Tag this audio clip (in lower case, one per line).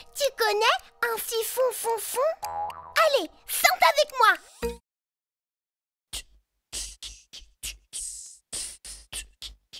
speech